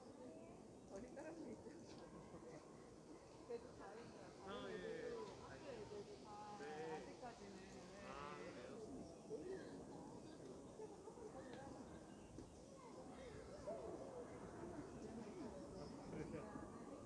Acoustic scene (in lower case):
park